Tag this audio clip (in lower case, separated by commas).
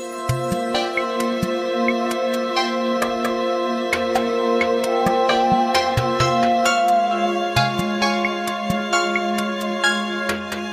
music